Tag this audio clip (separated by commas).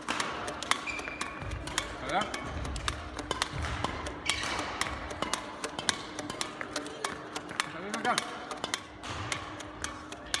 playing badminton